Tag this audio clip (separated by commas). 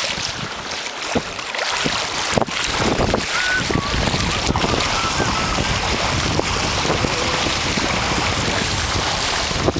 Vehicle